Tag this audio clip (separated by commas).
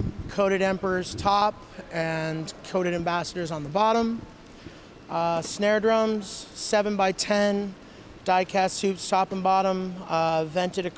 Speech